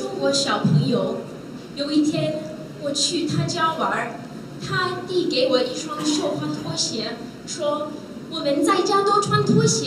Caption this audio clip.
A woman is giving a speech inside a small area